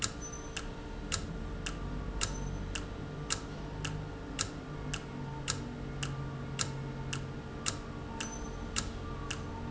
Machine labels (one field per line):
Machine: valve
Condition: normal